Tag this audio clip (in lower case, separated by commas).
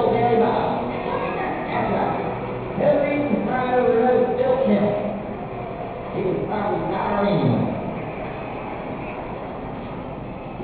music, speech